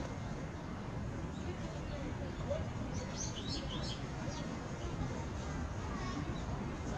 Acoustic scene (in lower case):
park